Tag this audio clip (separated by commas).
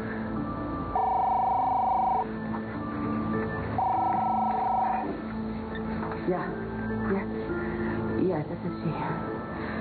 Music, Television, Speech